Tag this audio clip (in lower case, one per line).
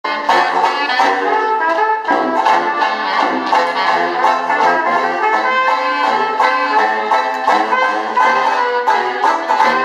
playing banjo
musical instrument
clarinet
trumpet
bluegrass
music
banjo